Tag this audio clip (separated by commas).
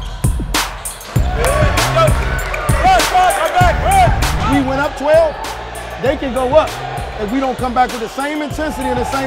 Music, Speech